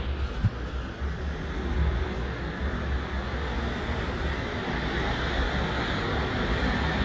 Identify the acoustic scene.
street